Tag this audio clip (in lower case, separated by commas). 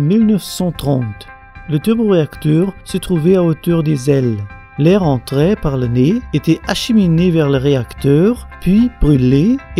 music, speech, mandolin